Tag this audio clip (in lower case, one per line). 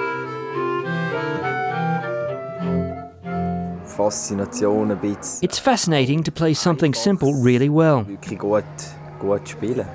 speech
music